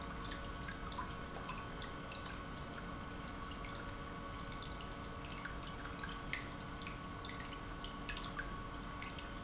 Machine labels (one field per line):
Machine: pump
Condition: normal